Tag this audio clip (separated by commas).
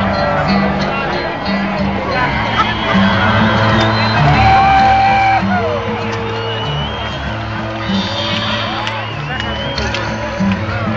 Music, Speech